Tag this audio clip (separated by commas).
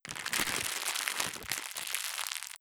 Crackle